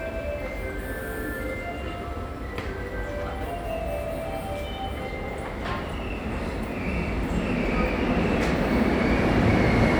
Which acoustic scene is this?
subway station